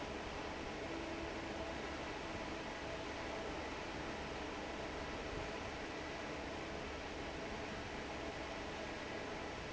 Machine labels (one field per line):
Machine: fan